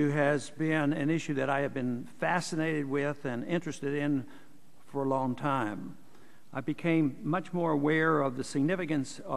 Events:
[0.01, 4.34] man speaking
[0.01, 9.35] background noise
[4.94, 5.95] man speaking
[6.42, 9.35] man speaking

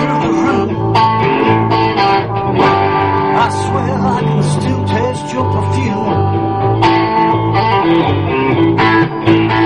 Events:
[0.01, 9.65] music
[3.37, 6.11] male speech

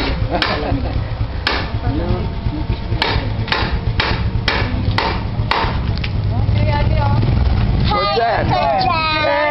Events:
[0.00, 9.50] background noise
[0.30, 0.66] stamp
[1.40, 1.87] stamp
[2.98, 3.26] stamp
[3.46, 3.76] stamp
[3.96, 4.25] stamp
[4.43, 4.74] stamp
[4.93, 5.25] stamp
[5.52, 5.91] stamp
[6.13, 9.50] vehicle
[6.24, 7.22] man speaking
[7.70, 8.87] female speech

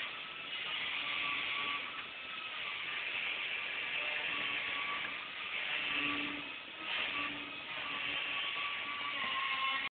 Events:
[0.00, 1.83] power windows
[0.00, 9.87] power tool
[0.53, 1.81] human voice
[1.93, 2.04] generic impact sounds
[2.49, 5.08] male speech
[5.00, 5.07] generic impact sounds
[5.39, 7.66] power windows
[5.45, 6.41] human voice
[6.82, 7.31] human voice
[7.58, 9.34] male speech
[9.19, 9.29] generic impact sounds

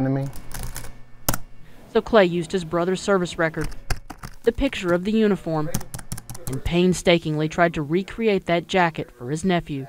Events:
[0.00, 0.32] male speech
[0.00, 9.85] mechanisms
[0.17, 0.36] computer keyboard
[0.49, 0.84] computer keyboard
[1.21, 1.40] computer keyboard
[1.58, 1.86] breathing
[1.91, 3.66] woman speaking
[3.50, 3.71] computer keyboard
[3.86, 4.31] computer keyboard
[4.42, 5.01] computer keyboard
[4.45, 5.72] woman speaking
[5.33, 5.87] male speech
[5.72, 5.97] computer keyboard
[6.10, 6.52] computer keyboard
[6.23, 6.69] male speech
[6.43, 8.58] woman speaking
[7.93, 8.28] male speech
[8.70, 9.82] woman speaking
[8.93, 9.32] male speech
[9.69, 9.85] male speech

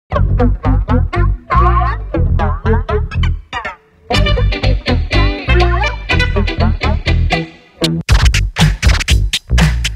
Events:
[0.09, 9.95] music

